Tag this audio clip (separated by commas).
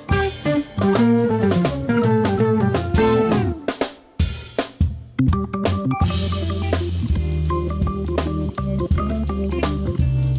Jazz, Music